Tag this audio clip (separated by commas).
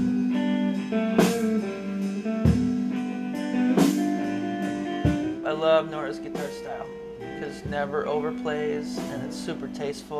Speech, Music